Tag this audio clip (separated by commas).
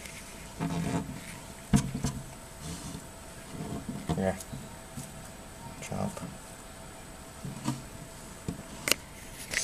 Speech